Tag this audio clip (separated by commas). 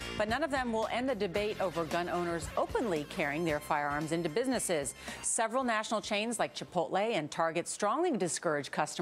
Speech, Music